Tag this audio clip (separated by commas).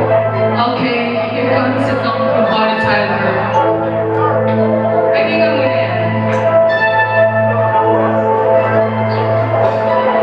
Music, Speech